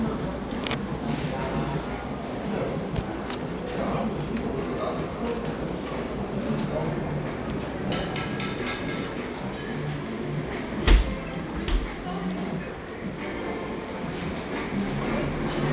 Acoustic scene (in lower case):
cafe